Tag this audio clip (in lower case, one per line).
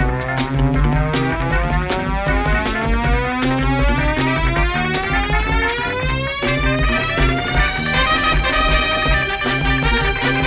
theme music
music